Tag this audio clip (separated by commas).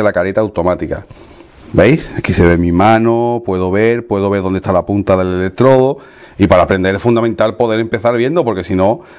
arc welding